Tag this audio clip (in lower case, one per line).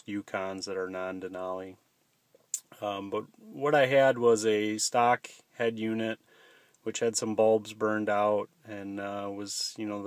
speech